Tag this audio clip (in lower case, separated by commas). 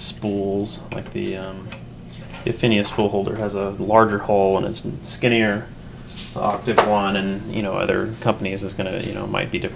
speech